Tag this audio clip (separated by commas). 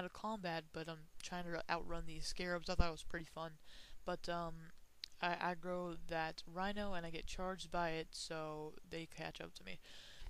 Speech